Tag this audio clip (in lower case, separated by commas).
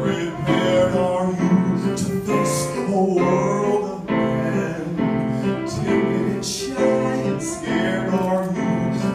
music, male singing